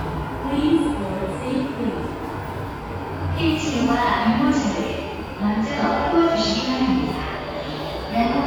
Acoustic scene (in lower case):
subway station